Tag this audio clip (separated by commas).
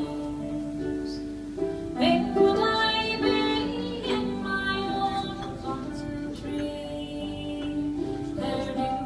Music, Female singing